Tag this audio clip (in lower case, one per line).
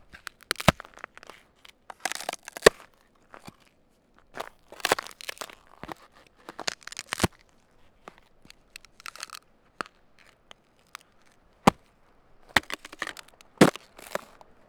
crack